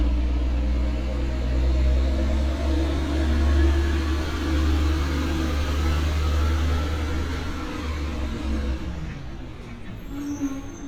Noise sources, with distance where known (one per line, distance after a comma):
engine of unclear size, far